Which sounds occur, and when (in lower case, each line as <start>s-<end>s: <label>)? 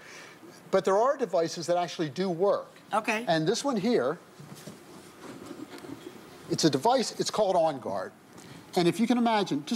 0.0s-0.5s: breathing
0.0s-9.7s: mechanisms
0.4s-0.5s: human voice
0.7s-2.8s: man speaking
0.7s-9.7s: conversation
2.9s-3.2s: female speech
3.2s-4.1s: man speaking
4.4s-4.8s: generic impact sounds
4.8s-5.1s: surface contact
5.2s-5.9s: generic impact sounds
6.5s-8.1s: man speaking
6.9s-7.0s: generic impact sounds
7.8s-7.9s: generic impact sounds
8.3s-8.4s: human sounds
8.3s-8.7s: breathing
8.7s-9.7s: man speaking